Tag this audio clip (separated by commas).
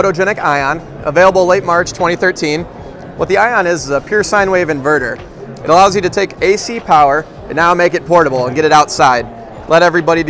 Music, Speech